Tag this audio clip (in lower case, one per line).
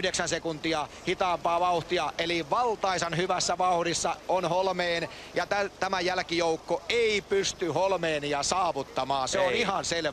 speech